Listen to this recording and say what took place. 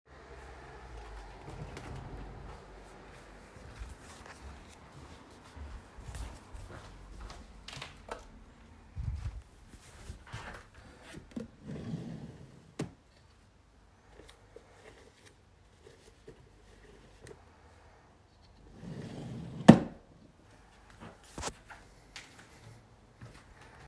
With the window still open I walked into the room and turned on the light. I opened a drawer to look for clothes and searched through them. I closed the drawer.